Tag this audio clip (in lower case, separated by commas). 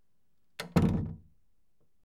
door, domestic sounds, slam